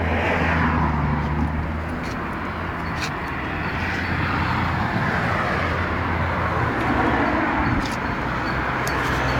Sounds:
car, vehicle

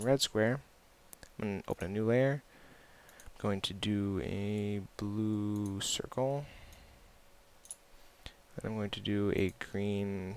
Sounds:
speech

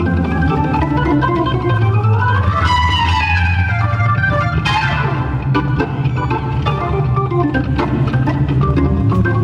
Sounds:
electronic organ, organ, playing electronic organ

